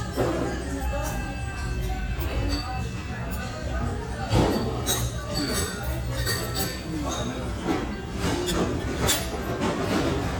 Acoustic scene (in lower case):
restaurant